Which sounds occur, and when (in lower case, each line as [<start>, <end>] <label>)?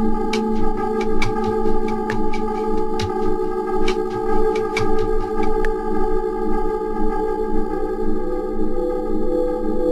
[0.00, 9.91] music